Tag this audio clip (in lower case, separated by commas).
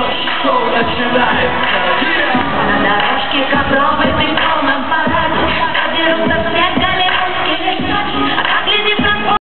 blues, music